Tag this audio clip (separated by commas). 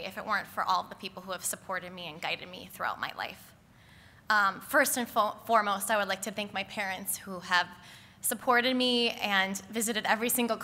woman speaking, Speech